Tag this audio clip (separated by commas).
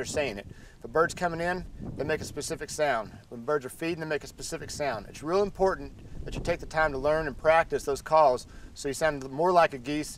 Speech